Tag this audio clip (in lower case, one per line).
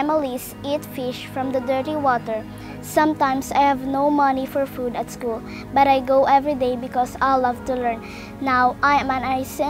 music
speech